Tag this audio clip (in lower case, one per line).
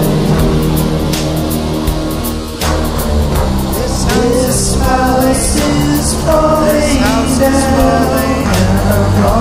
music